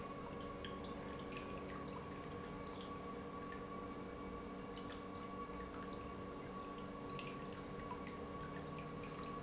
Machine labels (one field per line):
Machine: pump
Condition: normal